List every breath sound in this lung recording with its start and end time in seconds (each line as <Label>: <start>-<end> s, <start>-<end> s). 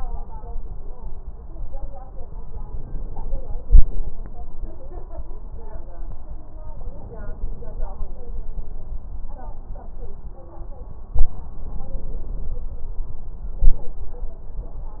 Inhalation: 6.70-7.92 s, 11.08-12.67 s
Exhalation: 13.57-13.89 s